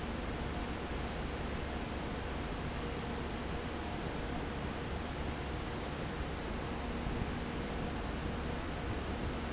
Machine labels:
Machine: fan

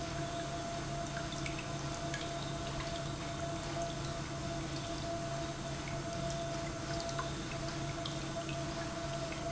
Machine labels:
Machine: pump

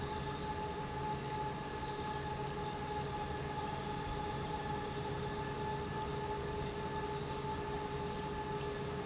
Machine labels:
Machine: pump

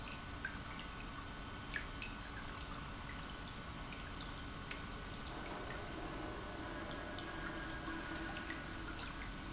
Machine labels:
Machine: pump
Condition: normal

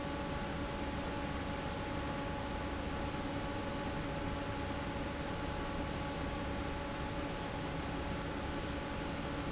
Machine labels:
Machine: fan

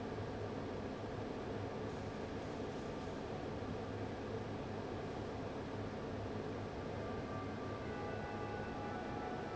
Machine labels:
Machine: fan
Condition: abnormal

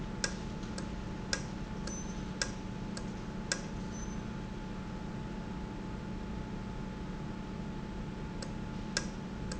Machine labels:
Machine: valve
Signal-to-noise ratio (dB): -6 dB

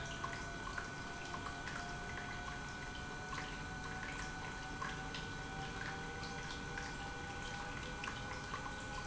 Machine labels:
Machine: pump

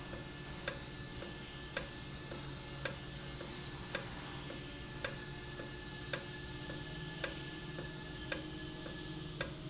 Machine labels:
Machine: valve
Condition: normal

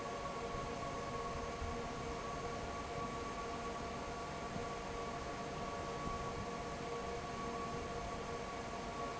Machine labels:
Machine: fan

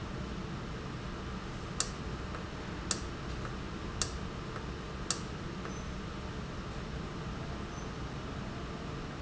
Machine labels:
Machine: valve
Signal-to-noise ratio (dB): -6 dB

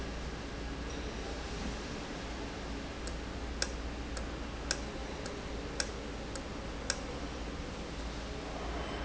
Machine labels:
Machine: valve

